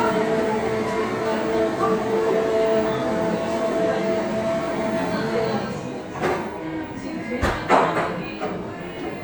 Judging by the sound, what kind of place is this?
cafe